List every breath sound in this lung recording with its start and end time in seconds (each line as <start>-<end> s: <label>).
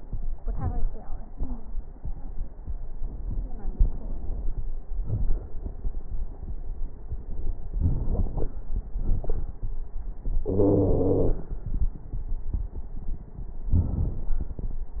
7.80-8.54 s: inhalation
7.80-8.54 s: crackles
8.99-9.43 s: exhalation
8.99-9.43 s: crackles
10.51-11.39 s: wheeze